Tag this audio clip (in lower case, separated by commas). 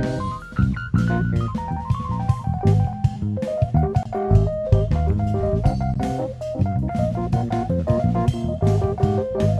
percussion, musical instrument, music, drum, drum kit, piano, electronic music, drum and bass